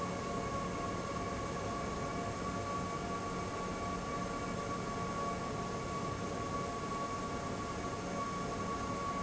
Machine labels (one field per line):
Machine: fan